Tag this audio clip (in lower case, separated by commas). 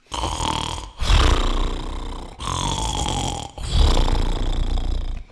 respiratory sounds, breathing